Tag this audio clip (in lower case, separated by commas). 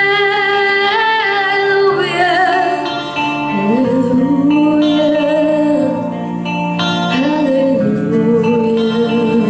music, female singing